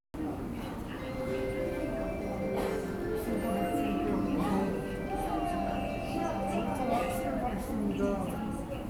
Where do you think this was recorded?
in a subway station